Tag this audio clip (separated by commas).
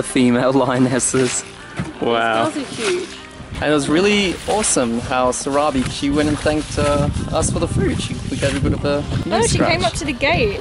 Speech, Music, outside, rural or natural